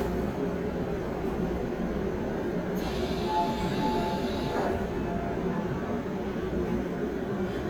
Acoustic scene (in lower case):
subway train